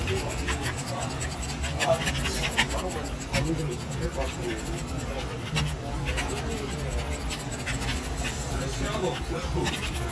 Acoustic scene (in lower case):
crowded indoor space